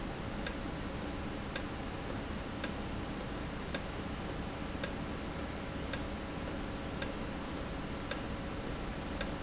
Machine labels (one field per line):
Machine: valve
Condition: normal